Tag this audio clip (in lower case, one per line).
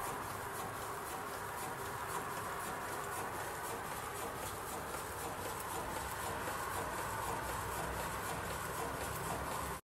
medium engine (mid frequency)
engine